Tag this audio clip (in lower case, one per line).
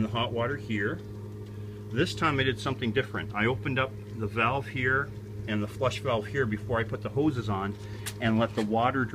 speech